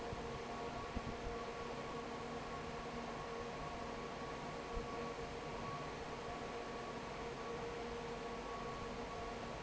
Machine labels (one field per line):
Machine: fan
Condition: normal